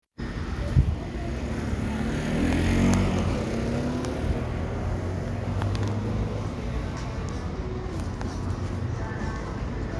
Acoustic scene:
street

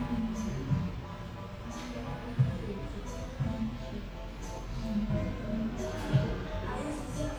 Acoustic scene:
cafe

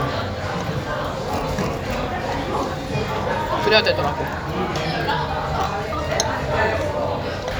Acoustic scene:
crowded indoor space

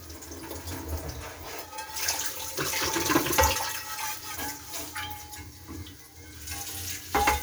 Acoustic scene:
kitchen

